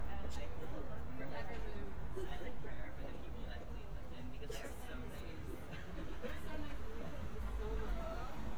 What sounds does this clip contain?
unidentified human voice